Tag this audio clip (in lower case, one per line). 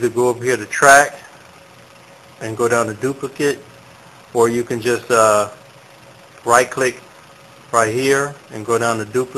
speech